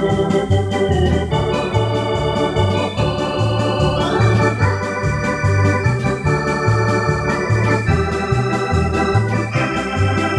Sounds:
playing hammond organ

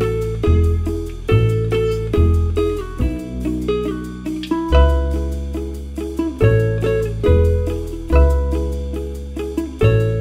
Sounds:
playing ukulele

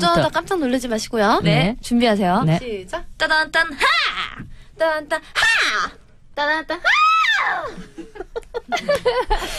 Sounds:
speech

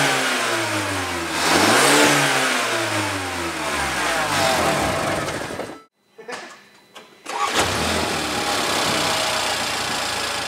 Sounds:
car
inside a large room or hall
medium engine (mid frequency)
engine
vehicle

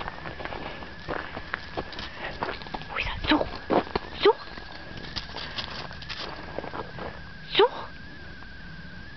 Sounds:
yip
animal
speech

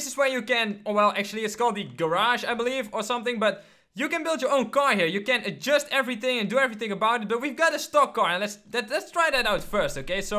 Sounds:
speech

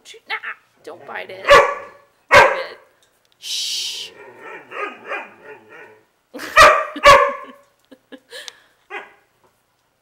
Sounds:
speech
dog
animal
bark
pets

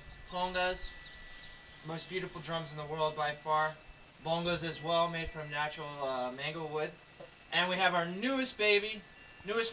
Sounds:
speech

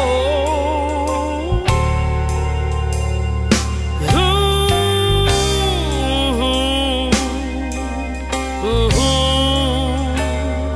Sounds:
music

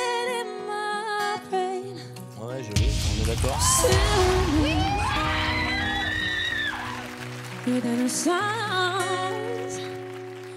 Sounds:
music
speech
acoustic guitar

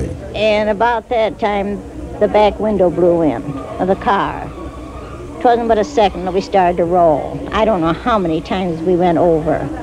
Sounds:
speech

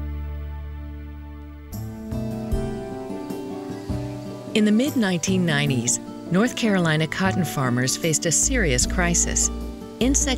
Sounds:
speech
music

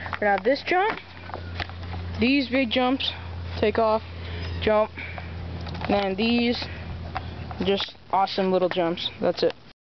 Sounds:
speech

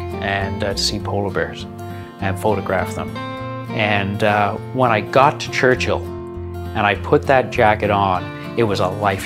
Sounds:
music
speech

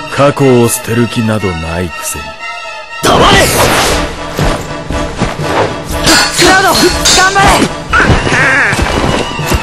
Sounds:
music
speech

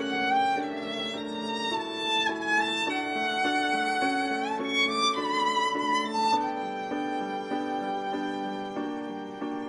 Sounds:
music
violin
musical instrument

